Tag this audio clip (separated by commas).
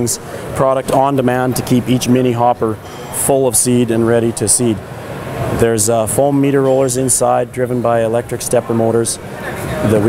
Speech